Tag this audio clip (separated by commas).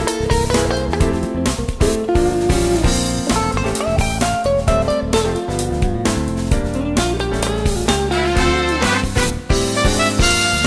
Music